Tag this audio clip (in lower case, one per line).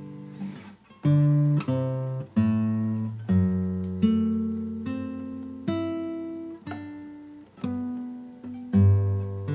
guitar
musical instrument
strum
plucked string instrument